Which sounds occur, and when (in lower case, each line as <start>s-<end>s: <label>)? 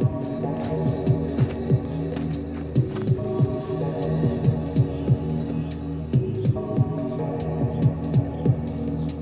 0.0s-9.2s: music